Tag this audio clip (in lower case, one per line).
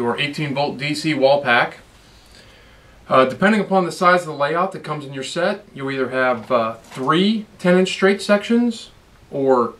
speech